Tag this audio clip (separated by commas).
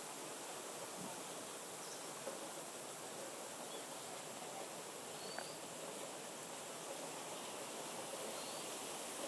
Pink noise